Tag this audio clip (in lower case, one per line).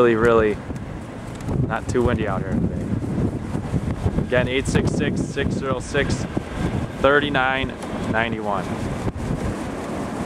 wind noise (microphone)
wind